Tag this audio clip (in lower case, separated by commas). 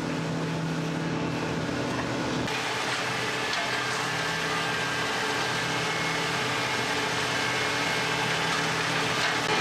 printer, printer printing